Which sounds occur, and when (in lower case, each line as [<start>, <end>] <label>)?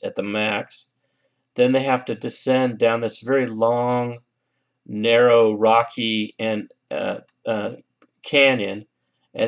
[0.00, 0.88] man speaking
[0.00, 9.45] mechanisms
[0.93, 1.35] breathing
[1.39, 1.46] tick
[1.51, 4.19] man speaking
[4.30, 4.83] breathing
[4.82, 6.71] man speaking
[6.87, 7.20] man speaking
[7.24, 7.31] clicking
[7.41, 7.79] man speaking
[7.97, 8.08] clicking
[8.21, 8.83] man speaking
[8.90, 9.28] breathing